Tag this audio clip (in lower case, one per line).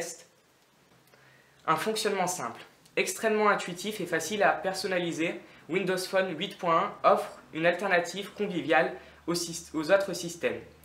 speech